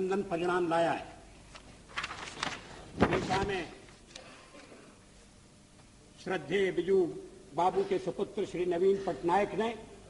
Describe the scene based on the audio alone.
A male giving a speech